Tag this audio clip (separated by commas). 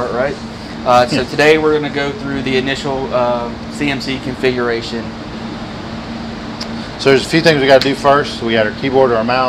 Speech